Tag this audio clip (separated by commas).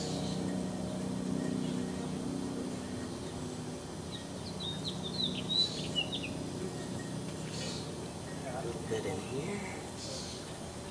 Bird vocalization, outside, rural or natural, Bird